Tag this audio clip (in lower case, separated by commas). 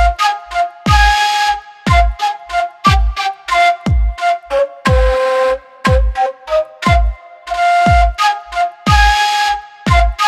music